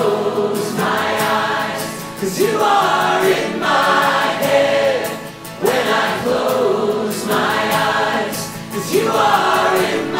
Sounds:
singing choir

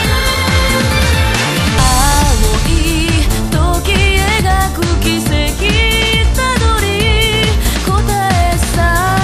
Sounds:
music

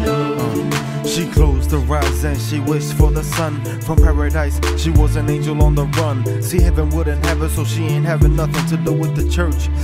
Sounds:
music

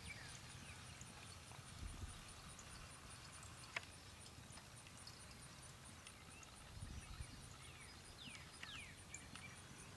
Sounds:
clip-clop

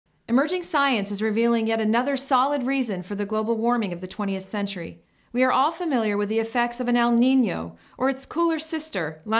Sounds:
speech

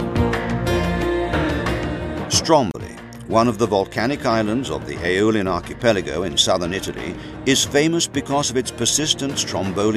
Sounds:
music
speech

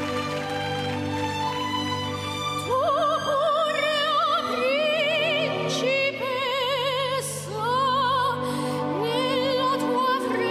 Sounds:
child singing

